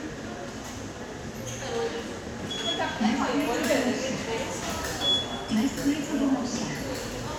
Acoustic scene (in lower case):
subway station